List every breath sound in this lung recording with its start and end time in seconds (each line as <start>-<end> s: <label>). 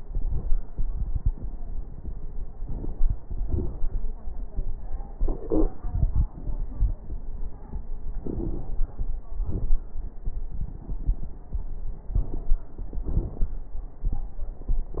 2.66-3.23 s: inhalation
2.66-3.23 s: crackles
3.43-4.01 s: exhalation
3.43-4.01 s: crackles
8.19-8.87 s: inhalation
8.19-8.87 s: crackles
9.46-9.81 s: exhalation
9.46-9.81 s: crackles
12.15-12.64 s: inhalation
12.15-12.64 s: crackles
13.05-13.53 s: exhalation
13.05-13.53 s: crackles